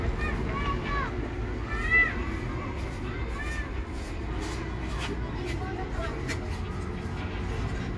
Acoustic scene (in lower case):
residential area